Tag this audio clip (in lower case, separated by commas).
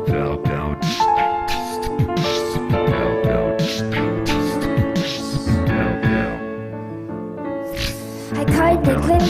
music, soul music